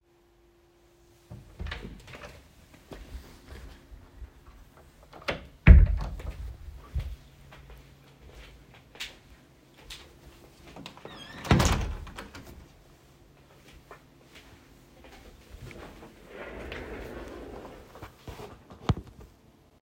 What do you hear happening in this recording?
I opened the door, walked into the office, and closed the door behind me. I then walked to the window and closed it, after which I walked to the desk chair and sat down.